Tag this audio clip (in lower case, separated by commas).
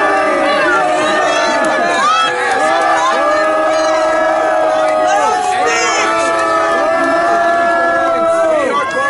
people booing